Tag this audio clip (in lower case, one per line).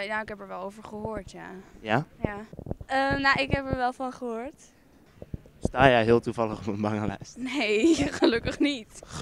speech